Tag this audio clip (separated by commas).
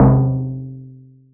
Percussion, Music, Musical instrument, Drum